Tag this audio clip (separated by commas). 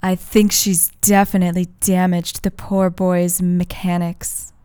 woman speaking, Speech, Human voice